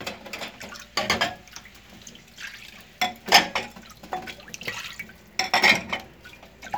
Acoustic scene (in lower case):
kitchen